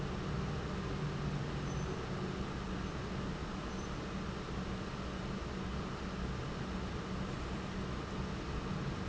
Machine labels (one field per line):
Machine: pump